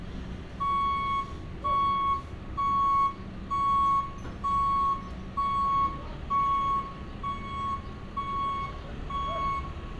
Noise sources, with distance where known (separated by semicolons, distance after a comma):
reverse beeper, near